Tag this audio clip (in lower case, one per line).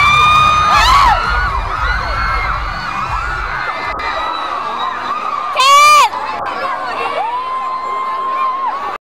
speech
whoop